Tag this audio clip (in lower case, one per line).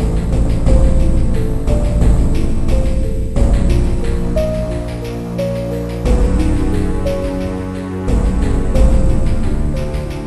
theme music
music